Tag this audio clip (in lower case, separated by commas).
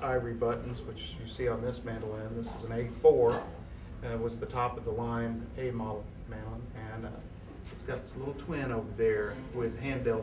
speech